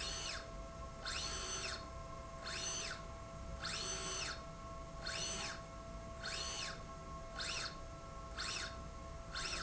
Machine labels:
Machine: slide rail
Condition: normal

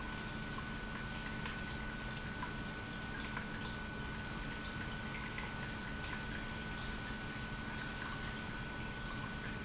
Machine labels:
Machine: pump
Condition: normal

